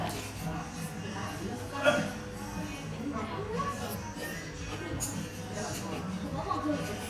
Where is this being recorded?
in a restaurant